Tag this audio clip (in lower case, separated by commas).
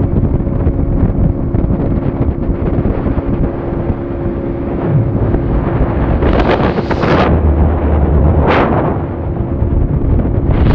water vehicle, motorboat, vehicle